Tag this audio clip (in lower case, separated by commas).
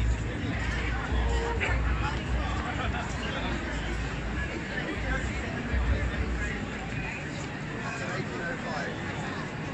people marching